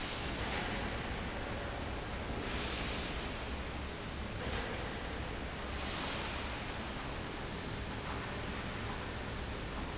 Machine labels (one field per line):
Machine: fan